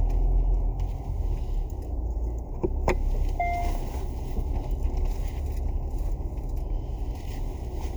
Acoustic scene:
car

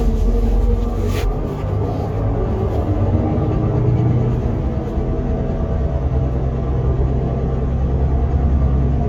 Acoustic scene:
car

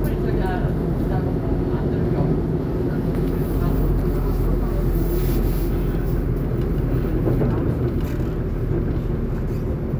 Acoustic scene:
subway train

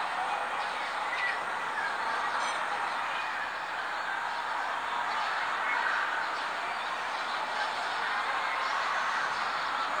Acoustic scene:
residential area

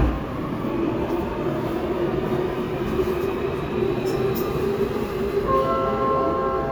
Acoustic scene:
subway train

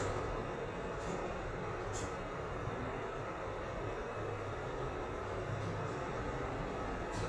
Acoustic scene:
elevator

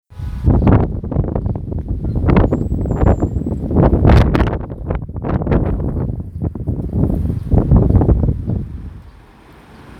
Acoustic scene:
residential area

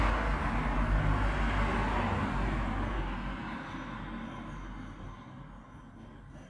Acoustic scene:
street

